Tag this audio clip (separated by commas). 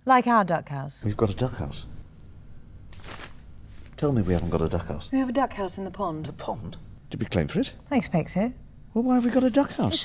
Speech